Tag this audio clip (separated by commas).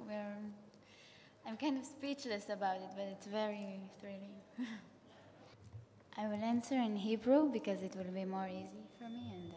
Speech